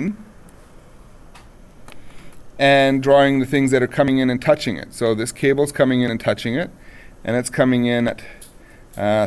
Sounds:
Speech

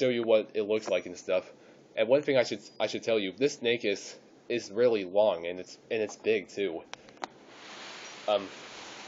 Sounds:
inside a small room, Speech

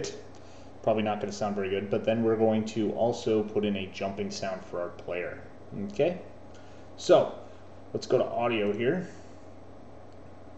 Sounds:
Speech

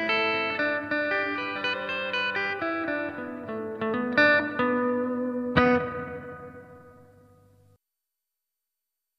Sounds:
Musical instrument, Bowed string instrument, Distortion, Electric guitar, Music, Plucked string instrument, Guitar

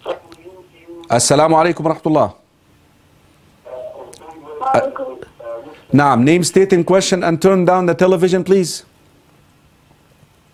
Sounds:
Speech

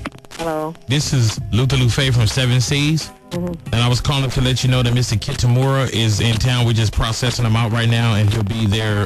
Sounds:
Music, Speech

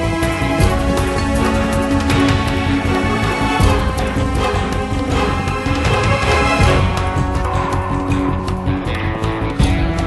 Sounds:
Music

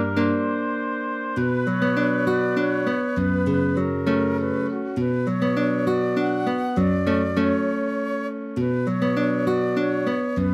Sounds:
Theme music, Music

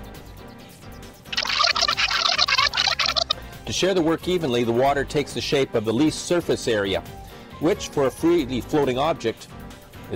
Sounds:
Music, Speech

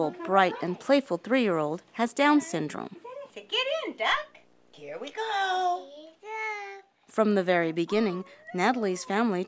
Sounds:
Speech, kid speaking

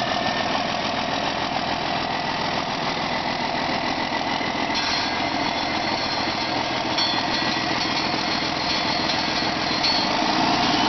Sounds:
Heavy engine (low frequency), Engine, Idling

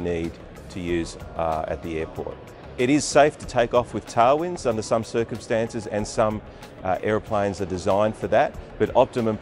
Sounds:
Speech, Music

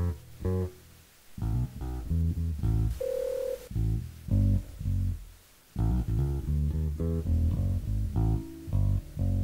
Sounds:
Music, Guitar, Telephone, Plucked string instrument, Bass guitar, Musical instrument, Telephone bell ringing

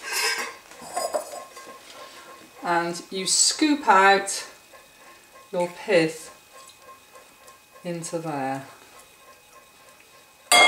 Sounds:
dishes, pots and pans, Cutlery, eating with cutlery

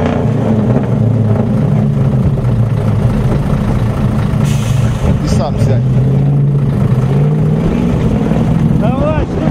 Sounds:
Vehicle, Speech, Truck

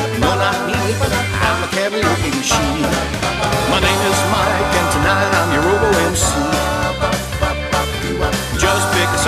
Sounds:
Music

